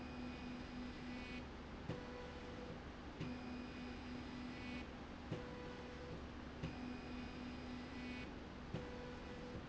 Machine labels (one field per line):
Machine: slide rail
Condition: normal